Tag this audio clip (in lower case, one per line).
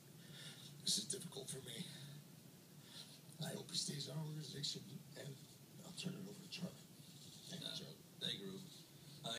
whimper
speech